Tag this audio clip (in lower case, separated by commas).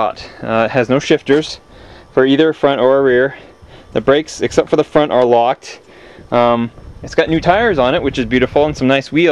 speech